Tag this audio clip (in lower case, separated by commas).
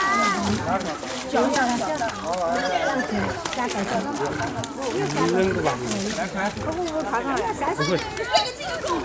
speech